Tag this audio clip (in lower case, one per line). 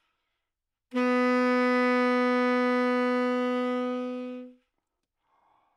musical instrument
woodwind instrument
music